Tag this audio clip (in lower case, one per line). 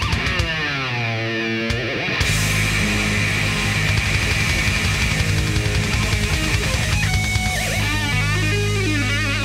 tapping (guitar technique)
music